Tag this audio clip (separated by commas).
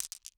Glass